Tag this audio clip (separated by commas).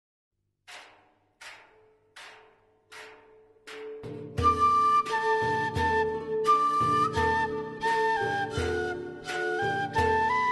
woodwind instrument, Flute